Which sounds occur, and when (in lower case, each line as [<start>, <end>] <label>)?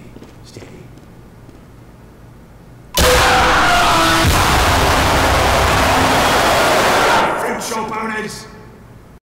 [0.00, 9.17] mechanisms
[0.10, 0.27] generic impact sounds
[0.42, 1.05] male speech
[0.92, 1.09] generic impact sounds
[1.42, 1.65] generic impact sounds
[2.94, 7.40] explosion
[7.41, 8.58] male speech